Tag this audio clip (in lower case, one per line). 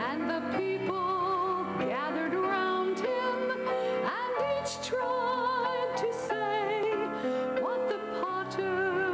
music